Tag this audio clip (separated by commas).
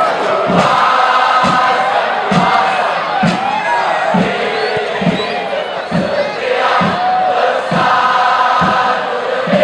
inside a public space